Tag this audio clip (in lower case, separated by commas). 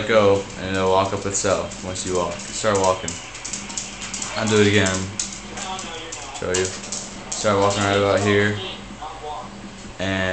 speech, walk